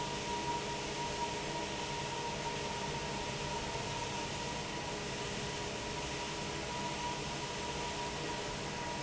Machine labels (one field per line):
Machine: fan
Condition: normal